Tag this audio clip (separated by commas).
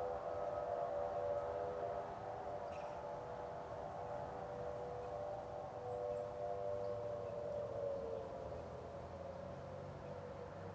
Siren